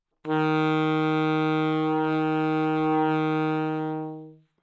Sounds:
musical instrument, music, wind instrument

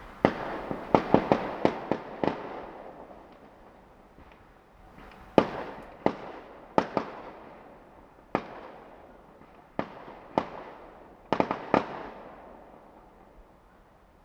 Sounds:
fireworks, explosion

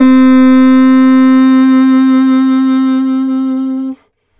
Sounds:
wind instrument, music, musical instrument

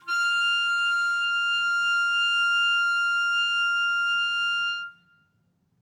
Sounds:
wind instrument, musical instrument, music

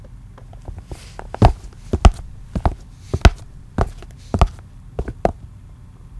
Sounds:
footsteps

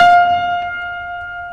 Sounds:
piano, music, keyboard (musical), musical instrument

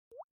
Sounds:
raindrop, water, liquid, drip, rain

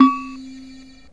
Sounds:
keyboard (musical), musical instrument, music

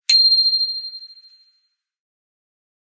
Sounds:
alarm, bicycle, bell, bicycle bell, vehicle

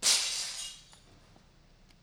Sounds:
shatter, glass

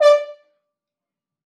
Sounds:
brass instrument, musical instrument, music

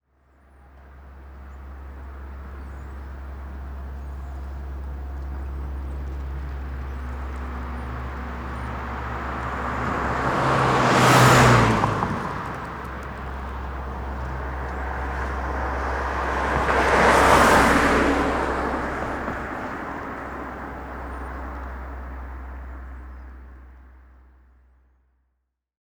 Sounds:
car, car passing by, motor vehicle (road), vehicle

